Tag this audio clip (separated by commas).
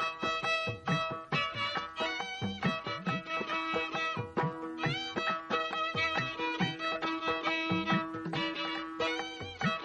Violin, Music, Musical instrument